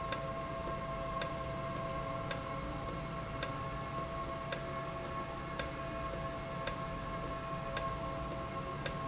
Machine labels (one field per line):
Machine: valve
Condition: normal